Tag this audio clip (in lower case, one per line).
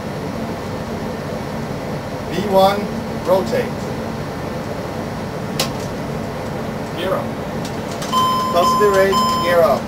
speech